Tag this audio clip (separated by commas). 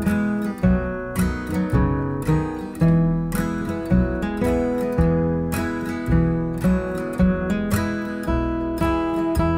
Musical instrument, Acoustic guitar, Guitar, Music, Strum, Plucked string instrument